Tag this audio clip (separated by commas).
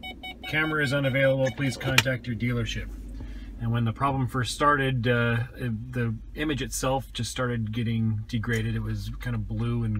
reversing beeps